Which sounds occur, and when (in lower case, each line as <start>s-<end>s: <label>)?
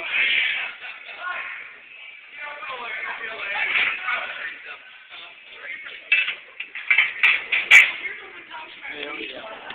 0.0s-0.7s: human voice
0.0s-9.7s: background noise
0.0s-9.7s: television
1.2s-9.7s: conversation
8.0s-9.7s: man speaking
9.7s-9.7s: generic impact sounds